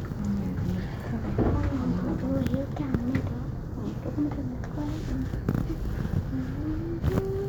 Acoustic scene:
elevator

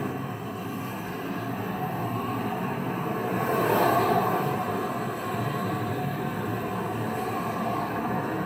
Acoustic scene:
street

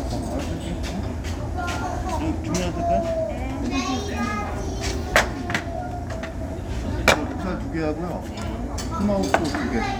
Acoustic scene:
restaurant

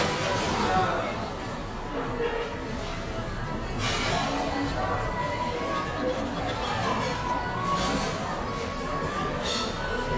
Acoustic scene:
cafe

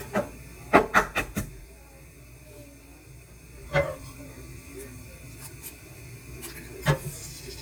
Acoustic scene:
kitchen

